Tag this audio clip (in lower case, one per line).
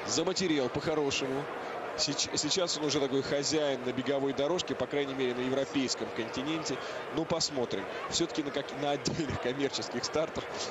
speech